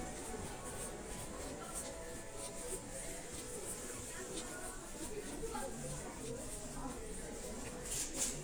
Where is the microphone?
in a crowded indoor space